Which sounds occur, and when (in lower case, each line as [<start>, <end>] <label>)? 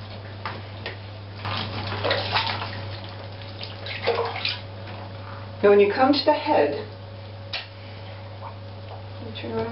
[0.00, 9.71] mechanisms
[0.03, 0.31] water
[0.41, 0.54] generic impact sounds
[0.80, 0.95] generic impact sounds
[1.33, 4.62] water
[2.41, 2.66] generic impact sounds
[5.59, 6.73] woman speaking
[6.43, 6.76] bark
[7.06, 7.32] surface contact
[7.50, 7.66] generic impact sounds
[7.64, 8.19] surface contact
[8.36, 8.67] drip
[8.39, 8.55] dog
[8.61, 9.04] water
[8.81, 8.97] dog
[8.84, 9.00] drip
[9.14, 9.71] woman speaking
[9.52, 9.67] drip